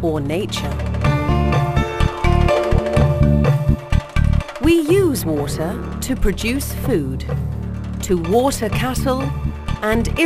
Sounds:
music, speech

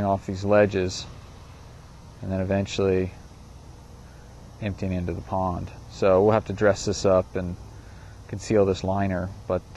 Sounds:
speech

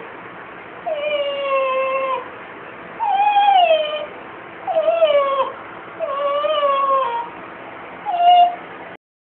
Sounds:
domestic animals, animal

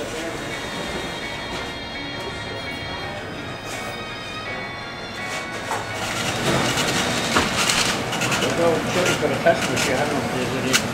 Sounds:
speech, music

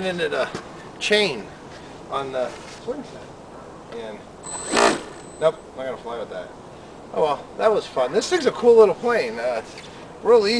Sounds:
speech

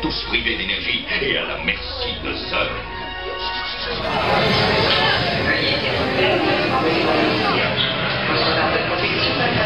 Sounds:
music, speech

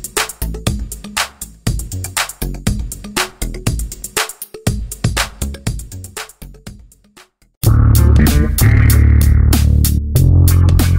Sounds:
music, reverberation

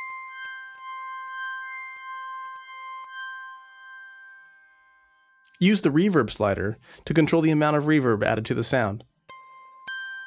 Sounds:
music, speech

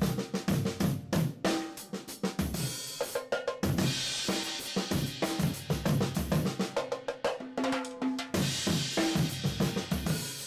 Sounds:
hi-hat, playing cymbal, cymbal, music

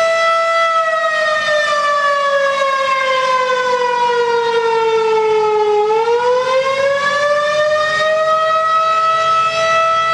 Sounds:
siren, civil defense siren

